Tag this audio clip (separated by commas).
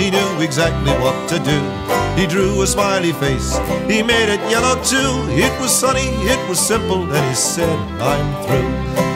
Funny music, Music